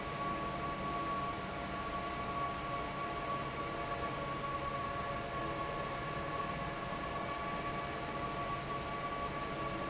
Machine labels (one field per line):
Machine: fan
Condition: normal